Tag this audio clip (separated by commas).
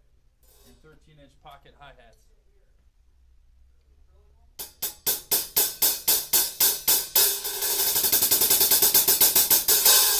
Percussion, Cymbal, Hi-hat